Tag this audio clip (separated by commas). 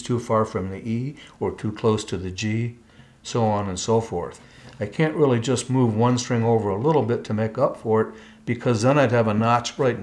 Speech